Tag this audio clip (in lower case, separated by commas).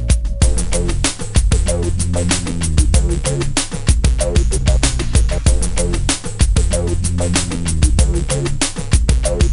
music, theme music